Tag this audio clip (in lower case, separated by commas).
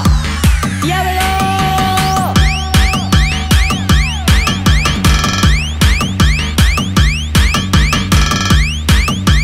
music, electronic music, techno